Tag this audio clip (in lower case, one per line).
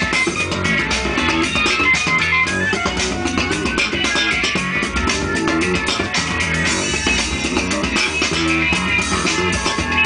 funk
music